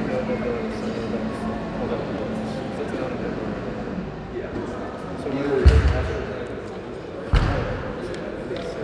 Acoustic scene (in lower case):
crowded indoor space